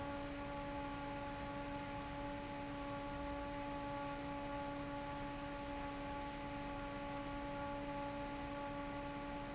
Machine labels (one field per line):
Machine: fan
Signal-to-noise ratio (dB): 6 dB